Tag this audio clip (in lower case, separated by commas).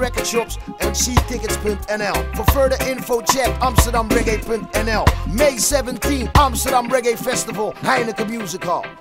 jazz, music